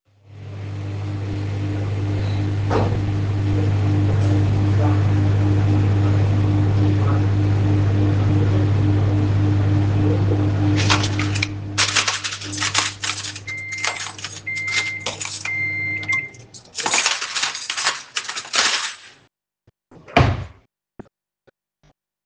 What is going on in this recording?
The microwave was running, eventually I started to make noise with the cuttlery as the microwave was still running, when it indicated that it finished, I turned the microwave off, meanwhile still making noise with the cuttlery. When I finally found the fork I was searching for I closed the drawer.